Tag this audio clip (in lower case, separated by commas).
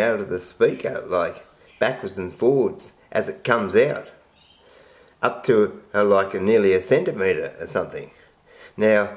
speech